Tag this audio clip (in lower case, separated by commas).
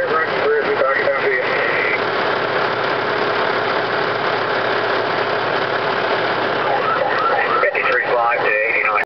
engine, speech, fire truck (siren), idling, emergency vehicle, vehicle